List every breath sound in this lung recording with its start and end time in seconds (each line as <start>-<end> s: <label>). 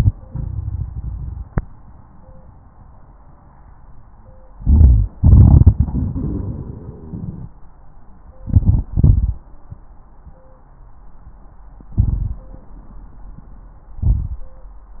3.34-4.43 s: wheeze
4.57-5.10 s: crackles
4.57-5.12 s: inhalation
5.20-7.46 s: exhalation
8.44-8.89 s: inhalation
8.91-9.36 s: exhalation
10.29-11.18 s: wheeze
11.97-12.45 s: inhalation
13.98-14.45 s: inhalation